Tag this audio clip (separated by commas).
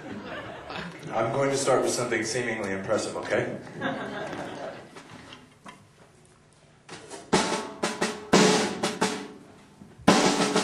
Percussion, Drum, Cymbal, Musical instrument, Drum kit, Speech, Bass drum, Hi-hat, Music